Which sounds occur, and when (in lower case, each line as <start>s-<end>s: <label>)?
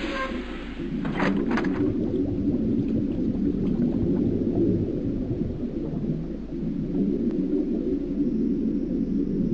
0.0s-9.5s: sound effect
1.5s-1.8s: generic impact sounds
2.0s-9.5s: water